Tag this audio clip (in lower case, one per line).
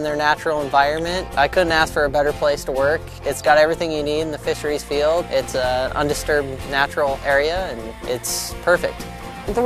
music
water
speech